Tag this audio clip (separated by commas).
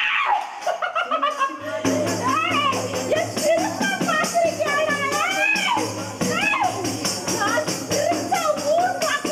Music, Laughter, Speech